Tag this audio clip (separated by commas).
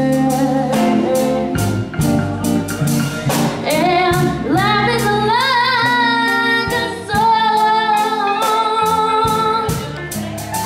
Singing, inside a large room or hall, Music